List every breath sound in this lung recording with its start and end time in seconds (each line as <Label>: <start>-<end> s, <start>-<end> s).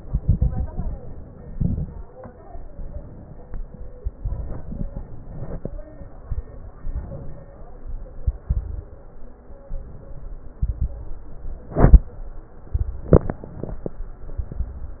Inhalation: 2.39-3.32 s, 5.05-5.74 s, 8.21-9.01 s, 9.69-10.49 s, 11.06-11.78 s, 13.44-14.20 s
Exhalation: 0.00-0.93 s, 1.52-2.14 s, 4.16-5.03 s, 6.78-7.58 s, 10.53-11.06 s, 12.71-13.43 s, 14.42-15.00 s
Crackles: 0.00-0.93 s, 1.52-2.14 s, 4.16-5.03 s, 8.21-9.01 s, 10.53-11.06 s, 12.71-13.43 s, 14.42-15.00 s